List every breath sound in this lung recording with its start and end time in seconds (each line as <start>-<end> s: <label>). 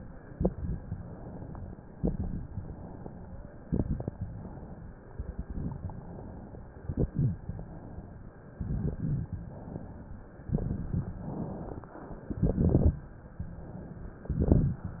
0.27-0.95 s: exhalation
0.27-0.95 s: crackles
0.98-1.91 s: inhalation
1.96-2.64 s: exhalation
1.96-2.64 s: crackles
2.66-3.58 s: inhalation
3.60-4.28 s: exhalation
3.60-4.28 s: crackles
4.27-5.06 s: inhalation
5.08-5.89 s: exhalation
5.08-5.89 s: crackles
5.94-6.73 s: inhalation
6.79-7.48 s: exhalation
6.79-7.48 s: crackles
7.50-8.48 s: inhalation
8.61-9.31 s: exhalation
8.61-9.31 s: crackles
9.47-10.46 s: inhalation
10.51-11.30 s: exhalation
10.51-11.30 s: crackles
11.34-12.32 s: inhalation
12.30-13.09 s: exhalation
12.30-13.09 s: crackles
13.16-14.05 s: inhalation
14.16-14.95 s: exhalation
14.16-14.95 s: crackles